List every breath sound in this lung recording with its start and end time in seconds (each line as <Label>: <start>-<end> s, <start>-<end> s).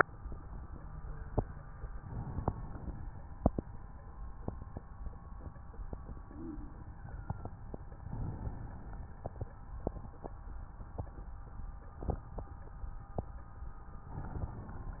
Inhalation: 1.93-2.96 s, 8.03-9.05 s, 14.16-15.00 s